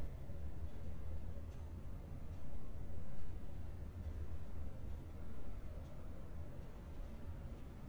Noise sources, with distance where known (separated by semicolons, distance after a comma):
background noise